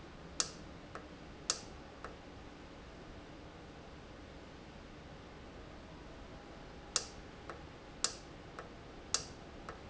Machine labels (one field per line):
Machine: valve